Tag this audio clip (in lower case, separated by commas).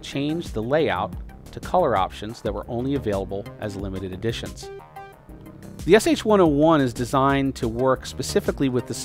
music, speech